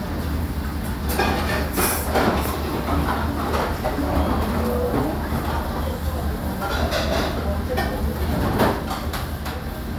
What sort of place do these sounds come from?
restaurant